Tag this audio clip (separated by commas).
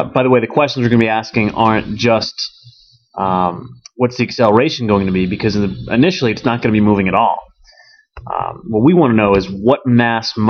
Speech